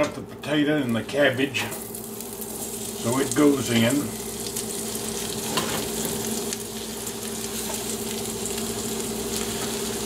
A man speaking before sizzling food